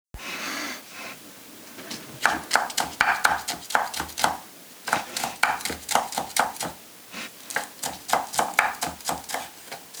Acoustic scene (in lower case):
kitchen